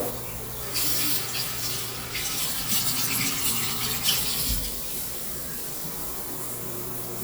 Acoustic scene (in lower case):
restroom